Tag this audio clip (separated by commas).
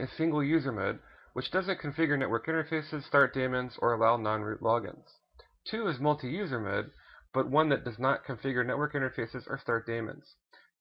Speech